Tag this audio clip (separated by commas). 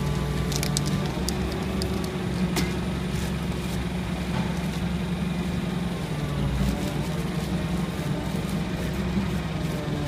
Music, Spray